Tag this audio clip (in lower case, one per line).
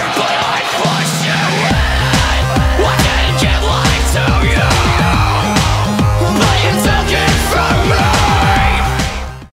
music